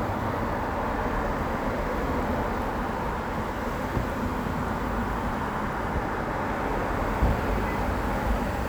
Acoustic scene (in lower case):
street